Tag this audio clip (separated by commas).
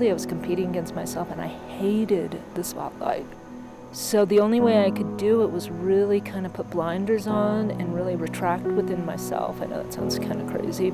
Speech, Music